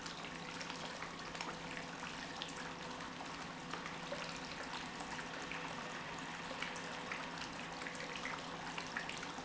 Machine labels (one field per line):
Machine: pump